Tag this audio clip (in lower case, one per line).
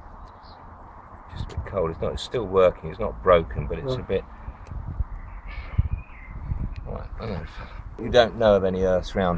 speech